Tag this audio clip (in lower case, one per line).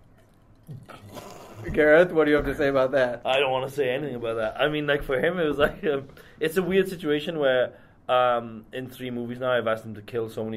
speech
inside a small room